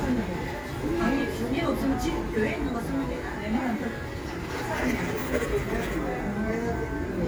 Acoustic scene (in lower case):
cafe